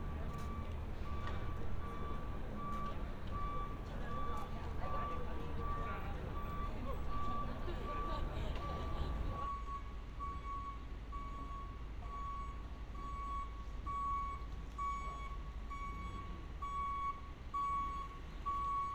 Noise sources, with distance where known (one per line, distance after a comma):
reverse beeper, near